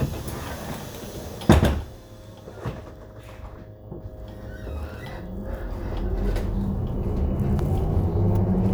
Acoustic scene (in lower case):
bus